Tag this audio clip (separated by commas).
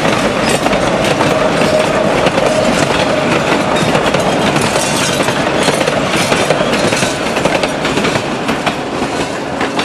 train whistling